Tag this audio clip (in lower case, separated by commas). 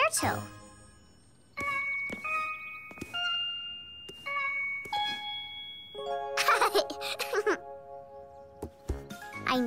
music, speech, kid speaking